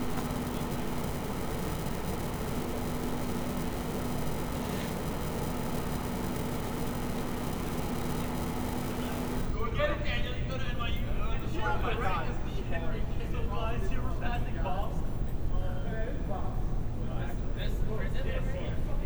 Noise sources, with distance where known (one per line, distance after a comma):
unidentified human voice